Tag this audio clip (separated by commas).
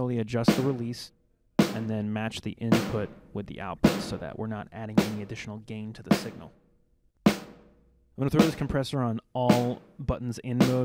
Music, Speech